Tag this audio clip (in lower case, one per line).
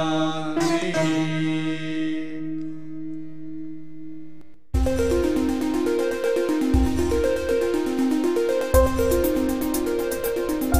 music